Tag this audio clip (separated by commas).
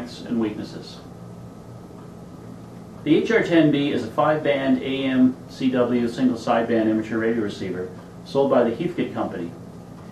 Speech